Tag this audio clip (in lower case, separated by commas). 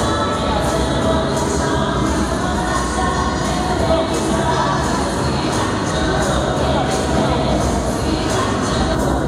speech, music